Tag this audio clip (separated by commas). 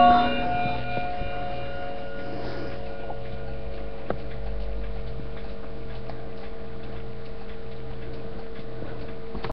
Tick-tock, Tick